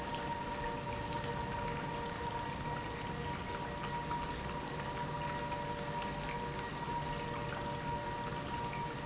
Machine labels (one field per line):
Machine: pump